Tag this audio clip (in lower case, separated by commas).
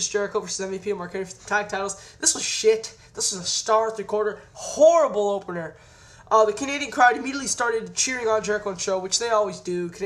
speech